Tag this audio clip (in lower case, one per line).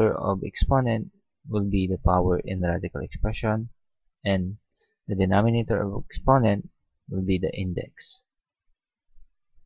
speech